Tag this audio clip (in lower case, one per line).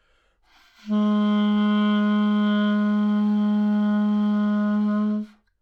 wind instrument
music
musical instrument